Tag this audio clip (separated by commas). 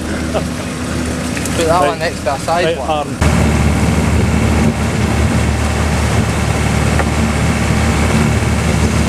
Speech